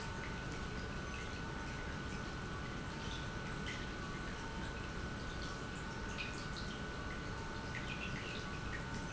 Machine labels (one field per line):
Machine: pump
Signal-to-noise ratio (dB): 0 dB